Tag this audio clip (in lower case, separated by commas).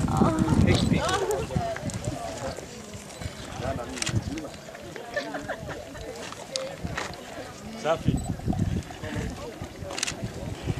speech